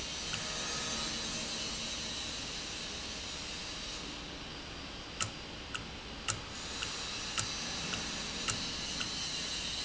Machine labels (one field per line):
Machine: valve